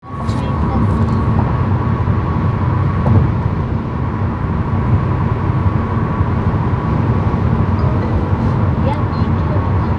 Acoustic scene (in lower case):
car